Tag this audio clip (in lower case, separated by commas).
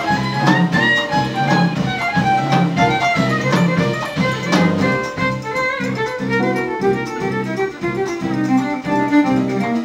jazz, music, violin, musical instrument